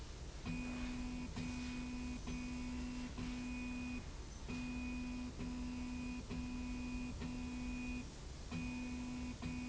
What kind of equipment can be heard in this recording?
slide rail